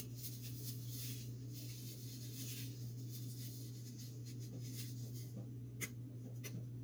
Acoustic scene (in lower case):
kitchen